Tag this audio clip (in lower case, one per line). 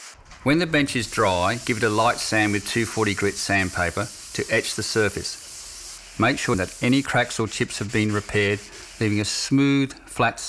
speech